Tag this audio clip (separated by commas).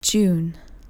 woman speaking, Human voice, Speech